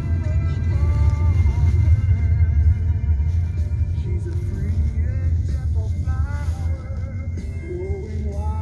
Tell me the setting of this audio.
car